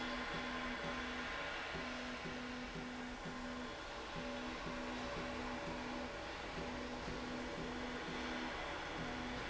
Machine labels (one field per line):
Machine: slide rail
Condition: normal